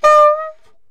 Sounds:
Music, woodwind instrument, Musical instrument

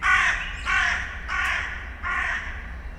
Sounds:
Crow, Animal, Bird, Wild animals

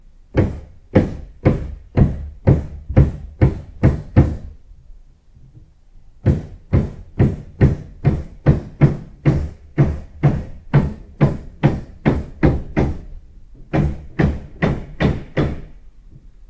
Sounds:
Tools, Hammer

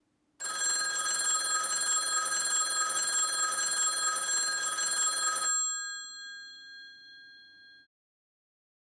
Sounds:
Alarm, Telephone

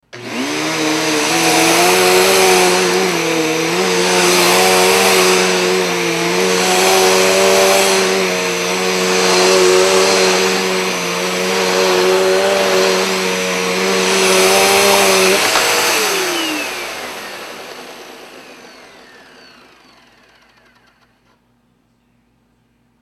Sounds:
Domestic sounds

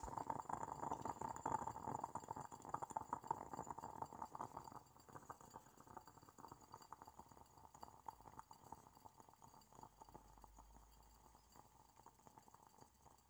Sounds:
Liquid, Boiling

